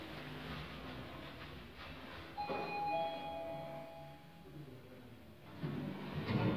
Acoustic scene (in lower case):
elevator